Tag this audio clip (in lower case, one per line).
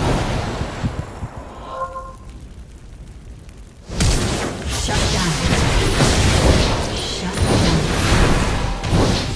speech